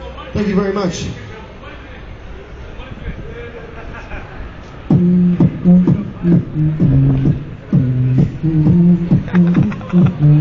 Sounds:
Vocal music, Speech, Beatboxing

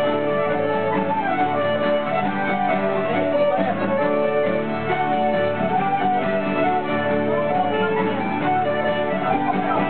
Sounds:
Independent music, Music, Exciting music

